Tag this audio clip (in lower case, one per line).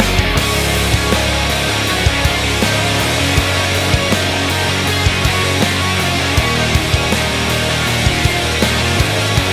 jazz
funk
pop music
music